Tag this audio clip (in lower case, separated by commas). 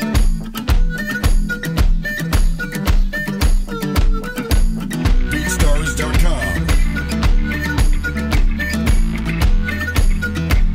speech, music, country